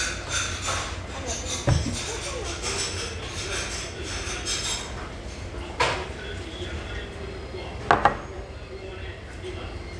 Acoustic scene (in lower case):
restaurant